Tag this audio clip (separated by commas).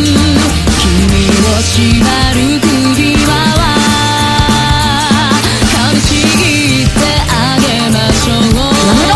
Music, Speech